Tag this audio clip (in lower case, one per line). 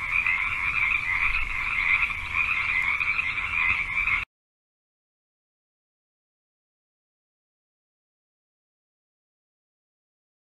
frog croaking